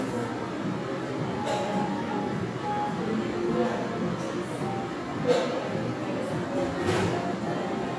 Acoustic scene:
crowded indoor space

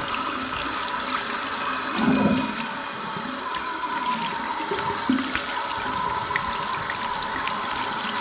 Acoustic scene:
restroom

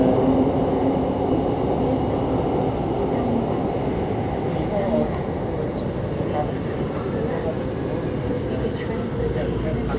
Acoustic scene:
subway train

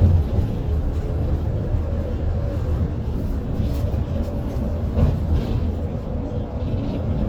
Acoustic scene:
bus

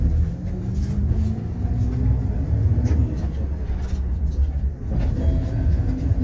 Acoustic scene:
bus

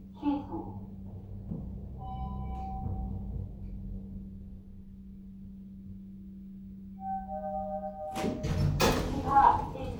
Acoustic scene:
elevator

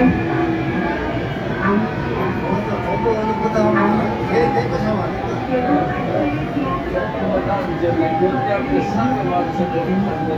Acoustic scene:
subway train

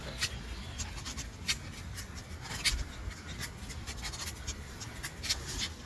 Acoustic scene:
park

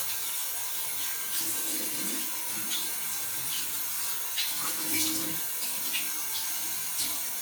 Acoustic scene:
restroom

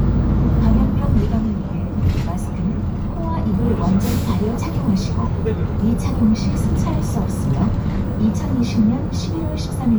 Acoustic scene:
bus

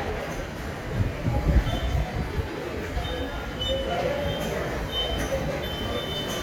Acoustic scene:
subway station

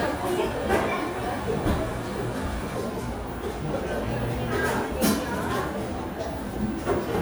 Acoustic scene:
cafe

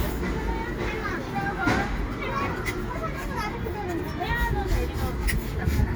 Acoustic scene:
residential area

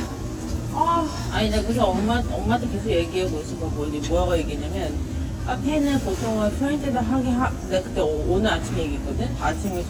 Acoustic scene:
crowded indoor space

